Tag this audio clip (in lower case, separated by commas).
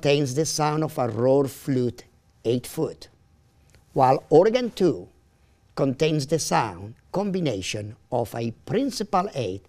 speech